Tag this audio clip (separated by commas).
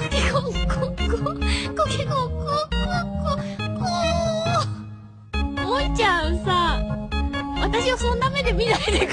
Music, Speech